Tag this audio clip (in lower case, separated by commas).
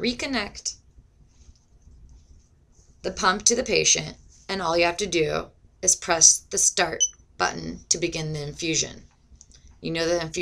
speech